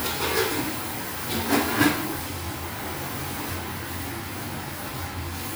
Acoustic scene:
restaurant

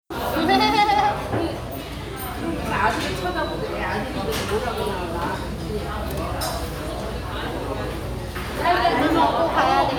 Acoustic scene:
restaurant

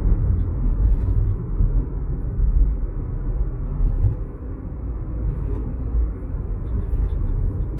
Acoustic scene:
car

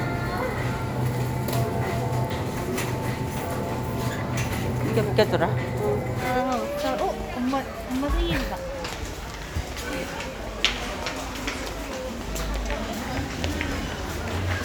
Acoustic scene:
crowded indoor space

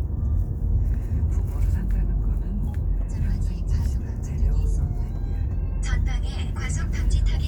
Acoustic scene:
car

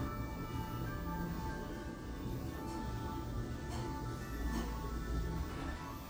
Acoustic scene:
elevator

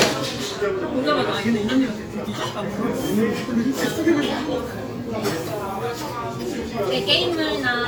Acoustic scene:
restaurant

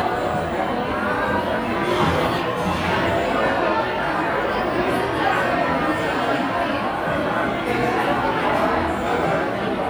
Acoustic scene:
crowded indoor space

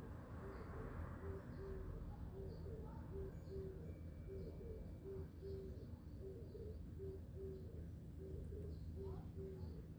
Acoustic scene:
residential area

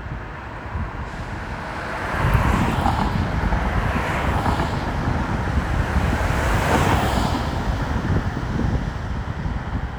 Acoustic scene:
street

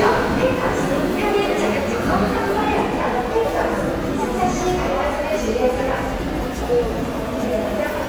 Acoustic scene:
subway station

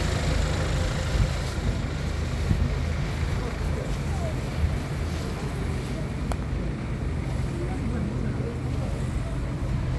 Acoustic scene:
street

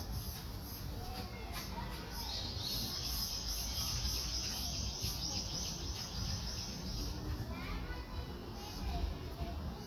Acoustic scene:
park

